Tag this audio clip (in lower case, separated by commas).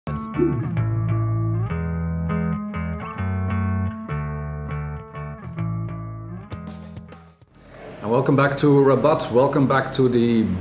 electric guitar, effects unit